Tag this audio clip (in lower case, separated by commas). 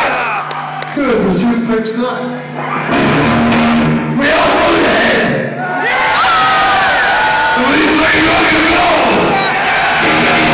speech, rock and roll, music